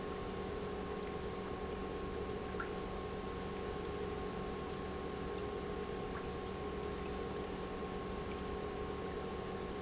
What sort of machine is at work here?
pump